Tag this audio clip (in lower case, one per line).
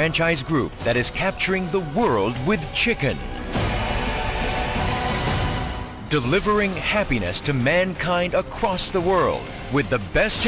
music
speech